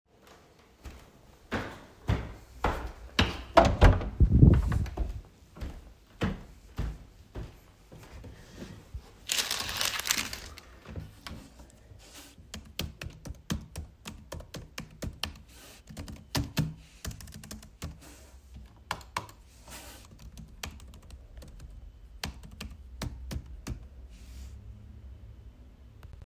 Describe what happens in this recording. I went from the living room to my room, having to open the door on my way. Once in my room, I went to my desk, crumpled up a piece of paper, and then typed some things on the keyboard and mouse.